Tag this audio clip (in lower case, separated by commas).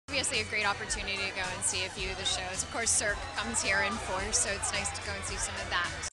speech, music